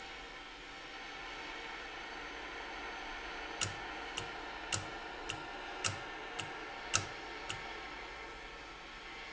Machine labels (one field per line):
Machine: valve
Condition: normal